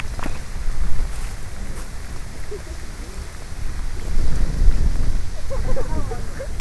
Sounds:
Wind

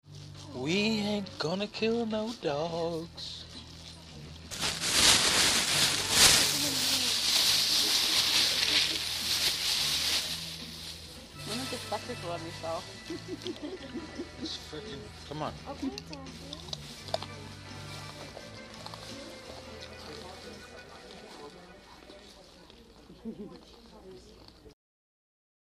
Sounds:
Singing, Human voice

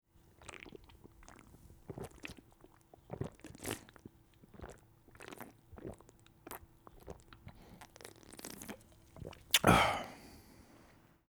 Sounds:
Liquid

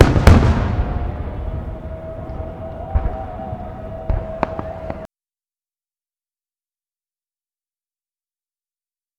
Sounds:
Fireworks, Explosion

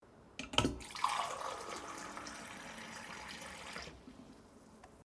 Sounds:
Liquid

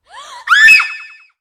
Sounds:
Shout, Yell, Screaming, Human voice

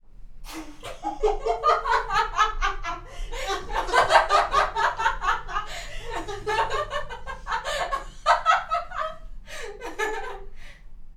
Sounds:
Laughter, Human voice

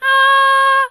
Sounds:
Female singing, Human voice, Singing

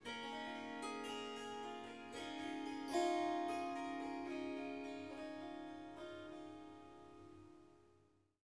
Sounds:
Music, Harp, Musical instrument

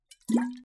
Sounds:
Liquid

